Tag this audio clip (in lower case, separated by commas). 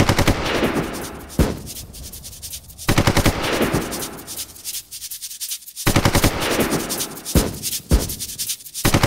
machine gun shooting, machine gun, music